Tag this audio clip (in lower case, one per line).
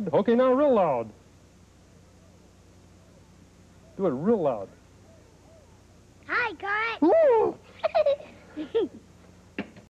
speech